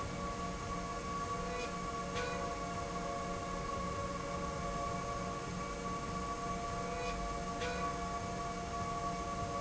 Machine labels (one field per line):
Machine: slide rail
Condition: normal